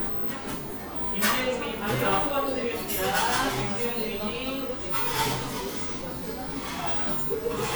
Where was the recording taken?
in a cafe